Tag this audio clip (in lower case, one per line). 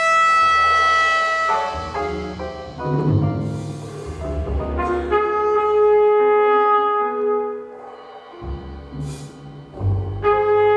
playing trumpet
trumpet
brass instrument